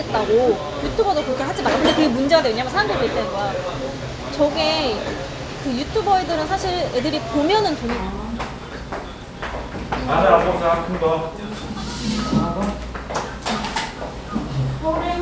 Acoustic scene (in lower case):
restaurant